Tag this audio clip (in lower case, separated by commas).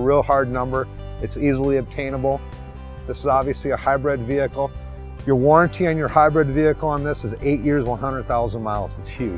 speech, music